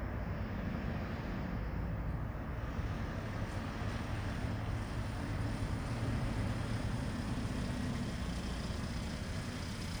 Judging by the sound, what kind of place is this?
residential area